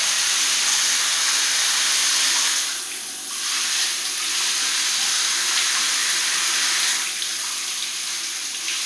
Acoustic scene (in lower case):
restroom